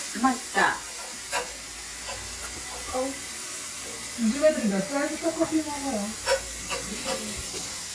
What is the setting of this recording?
restaurant